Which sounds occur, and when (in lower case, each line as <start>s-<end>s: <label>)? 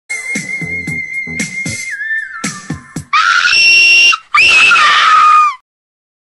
0.1s-3.1s: music
3.1s-4.2s: screaming
4.2s-4.3s: breathing
4.3s-5.6s: screaming